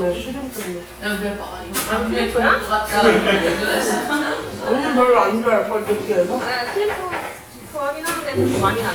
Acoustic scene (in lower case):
crowded indoor space